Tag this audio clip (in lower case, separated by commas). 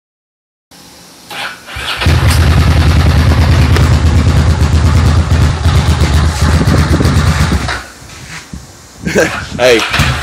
motorcycle, speech, engine, vehicle